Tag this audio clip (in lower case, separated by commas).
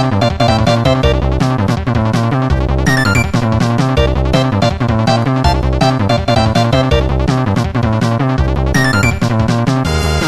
music, video game music